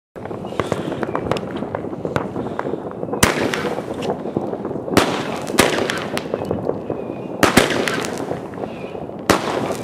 Wind is blowing and several short sharp bursts go off